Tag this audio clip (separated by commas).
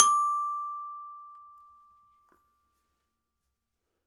Music, Glockenspiel, Musical instrument, Mallet percussion, Percussion